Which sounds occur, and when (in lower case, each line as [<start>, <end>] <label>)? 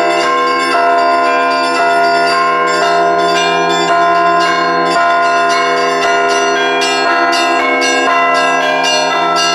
[0.00, 9.54] bell